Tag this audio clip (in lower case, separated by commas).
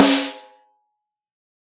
musical instrument, snare drum, drum, percussion, music